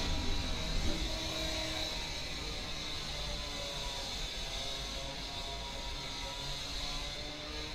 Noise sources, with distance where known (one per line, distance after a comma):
unidentified powered saw, near